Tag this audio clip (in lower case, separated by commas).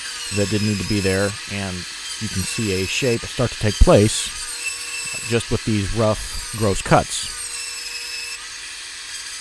wood, sawing